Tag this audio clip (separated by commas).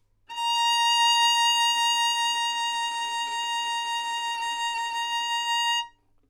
Musical instrument, Music, Bowed string instrument